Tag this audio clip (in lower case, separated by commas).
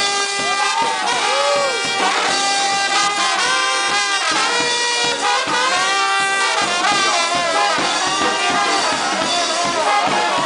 music, speech